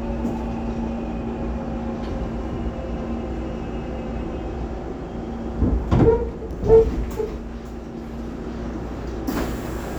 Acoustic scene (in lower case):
subway train